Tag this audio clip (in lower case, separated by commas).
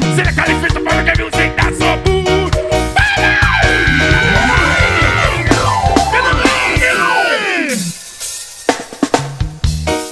reggae